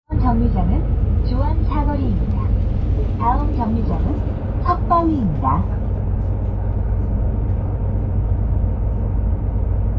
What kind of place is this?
bus